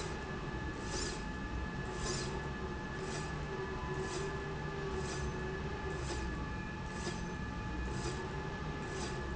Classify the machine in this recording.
slide rail